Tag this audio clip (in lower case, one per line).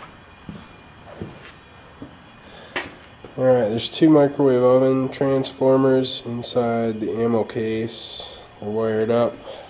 speech